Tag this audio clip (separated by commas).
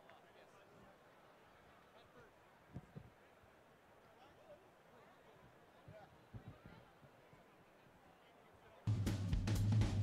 Music